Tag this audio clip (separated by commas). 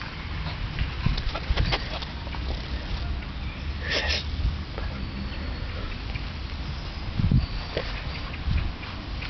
Speech